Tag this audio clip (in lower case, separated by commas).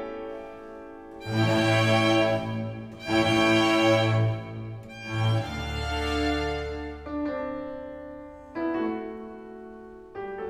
piano, keyboard (musical)